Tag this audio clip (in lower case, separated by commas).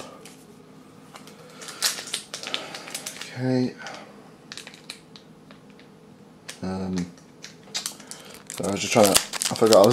speech